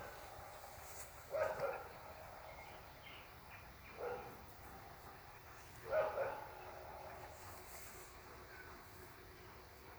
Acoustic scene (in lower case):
park